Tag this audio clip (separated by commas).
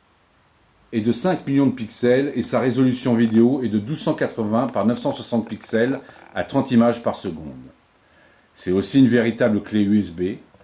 Speech